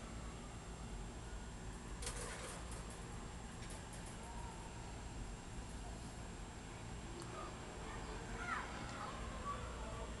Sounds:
speech

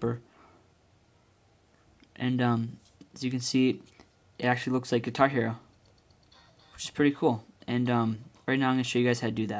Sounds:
speech

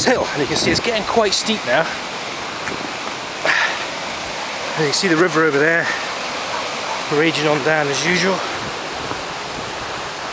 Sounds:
waterfall

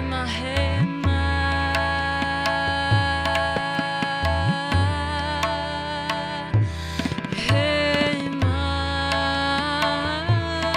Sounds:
percussion, drum, tabla

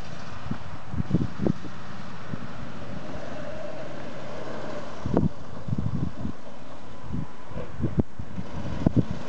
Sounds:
wind, wind noise (microphone)

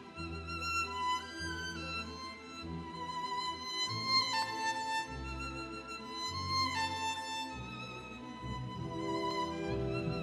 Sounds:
fiddle, bowed string instrument

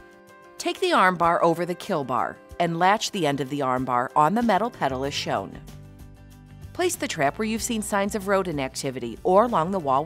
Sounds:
music, speech

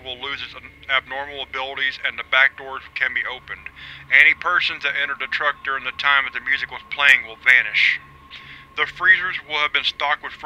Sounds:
ice cream van

